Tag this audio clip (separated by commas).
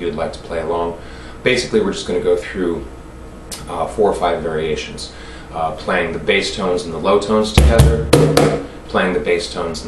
Speech